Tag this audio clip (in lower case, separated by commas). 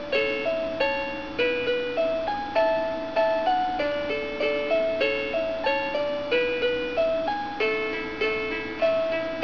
music, lullaby